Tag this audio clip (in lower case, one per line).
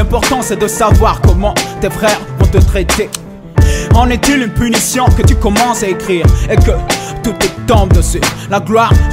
music